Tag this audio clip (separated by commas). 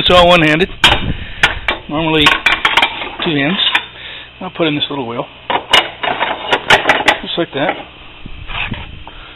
Speech, Tools